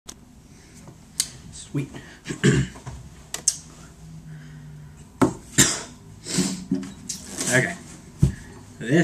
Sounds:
Speech

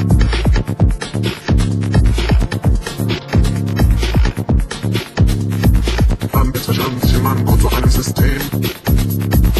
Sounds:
Music

